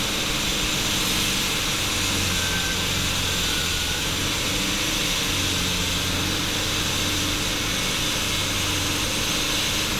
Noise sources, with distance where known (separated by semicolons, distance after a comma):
unidentified impact machinery, near